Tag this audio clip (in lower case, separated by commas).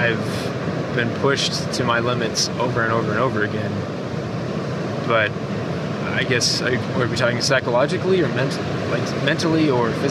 speech